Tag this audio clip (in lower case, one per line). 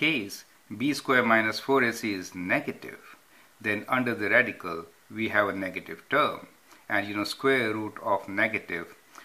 speech